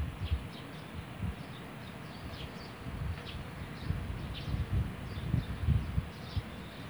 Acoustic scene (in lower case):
park